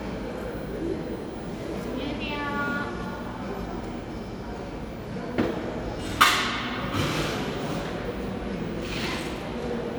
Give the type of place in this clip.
cafe